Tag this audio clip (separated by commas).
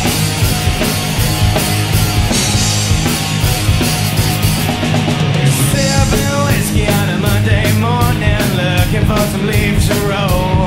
Music, Blues